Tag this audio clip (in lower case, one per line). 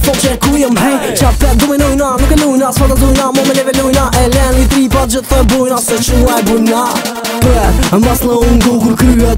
music
pop music